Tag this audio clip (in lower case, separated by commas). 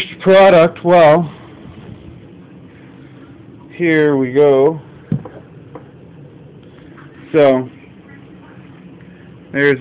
speech